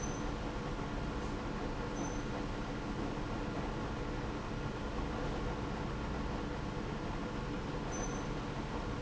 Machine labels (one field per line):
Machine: pump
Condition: abnormal